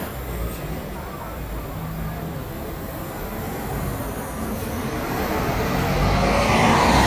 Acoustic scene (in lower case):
street